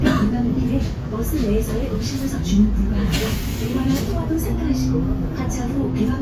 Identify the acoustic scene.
bus